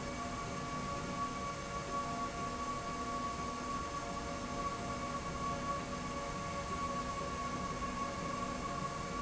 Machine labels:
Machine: slide rail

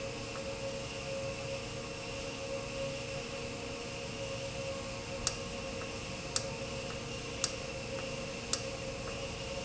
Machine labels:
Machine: valve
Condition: normal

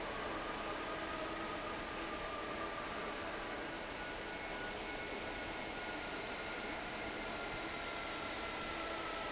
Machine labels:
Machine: fan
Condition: normal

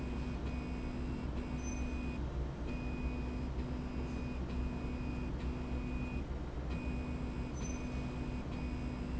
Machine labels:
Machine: slide rail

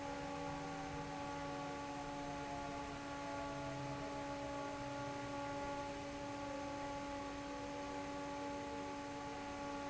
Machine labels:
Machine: fan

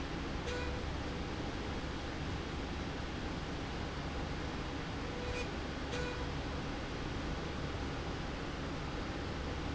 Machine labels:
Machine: slide rail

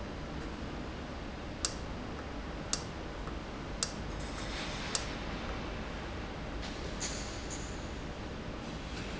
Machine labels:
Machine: valve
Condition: normal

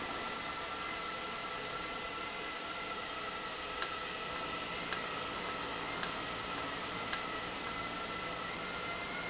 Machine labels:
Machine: valve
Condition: normal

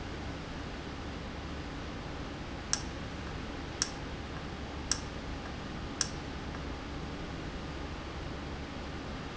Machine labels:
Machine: valve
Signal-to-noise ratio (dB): -6 dB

